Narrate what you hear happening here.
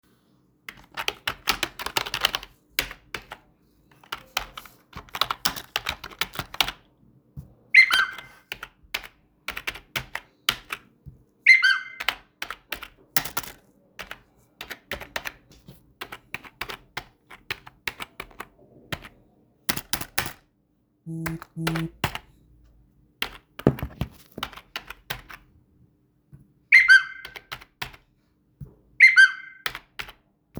I was doing my assignments and in the meantime I got some notifications